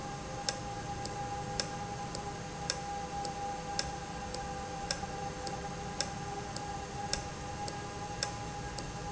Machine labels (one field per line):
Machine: valve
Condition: normal